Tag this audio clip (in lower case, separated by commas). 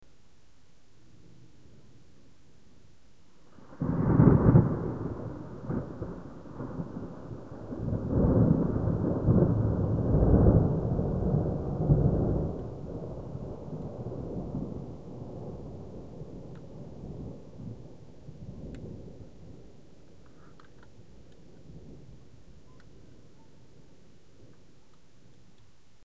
thunder, thunderstorm